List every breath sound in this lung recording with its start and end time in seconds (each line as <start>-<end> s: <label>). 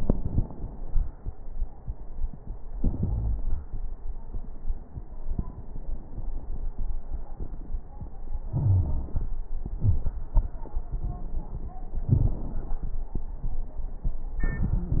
3.02-3.44 s: wheeze
8.49-9.18 s: wheeze
8.49-9.36 s: inhalation
9.76-10.12 s: exhalation
9.76-10.12 s: crackles